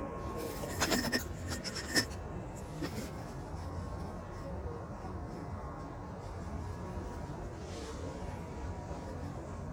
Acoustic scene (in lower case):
subway train